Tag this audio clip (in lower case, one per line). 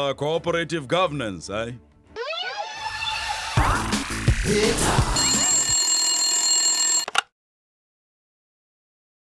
inside a small room
speech
music